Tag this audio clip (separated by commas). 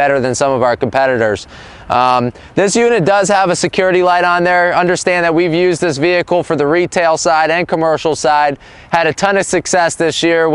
Speech